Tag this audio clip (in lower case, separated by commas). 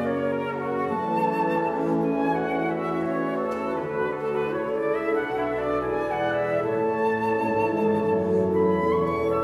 music, flute